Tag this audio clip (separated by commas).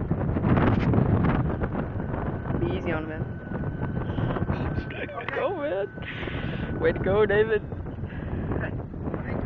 Speech